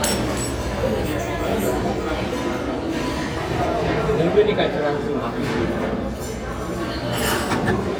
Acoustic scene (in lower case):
restaurant